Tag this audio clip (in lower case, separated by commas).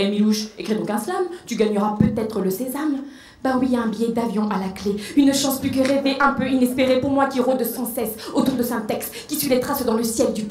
speech